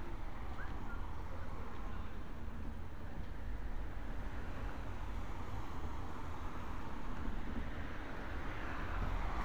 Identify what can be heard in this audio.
unidentified human voice